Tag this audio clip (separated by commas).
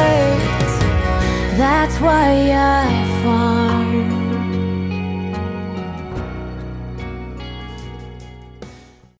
Funk, Country, Soundtrack music, Music, Bluegrass